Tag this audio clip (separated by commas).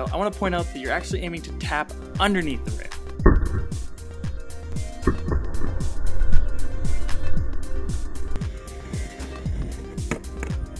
Music, Tap, Speech